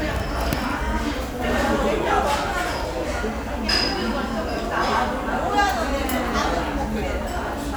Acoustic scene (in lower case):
restaurant